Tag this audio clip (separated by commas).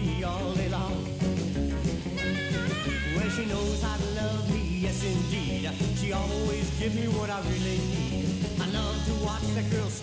Rock and roll